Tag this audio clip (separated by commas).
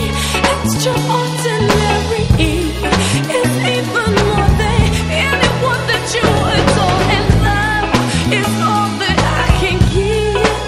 Music, Soul music